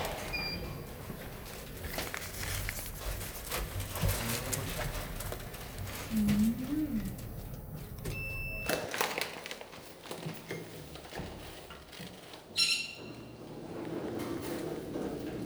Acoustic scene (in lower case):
elevator